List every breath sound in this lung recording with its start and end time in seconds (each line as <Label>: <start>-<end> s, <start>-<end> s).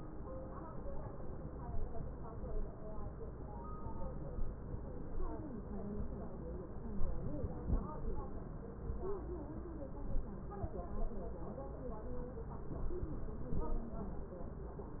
Inhalation: 7.13-8.04 s